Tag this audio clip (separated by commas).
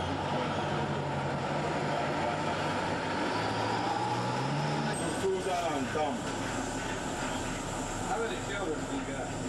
Speech